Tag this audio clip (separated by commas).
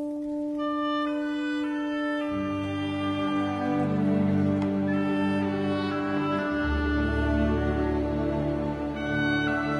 Musical instrument, Music, Orchestra, Bowed string instrument, Violin